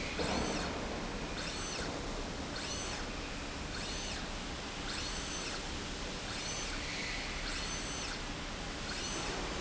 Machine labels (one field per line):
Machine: slide rail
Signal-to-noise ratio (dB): -6 dB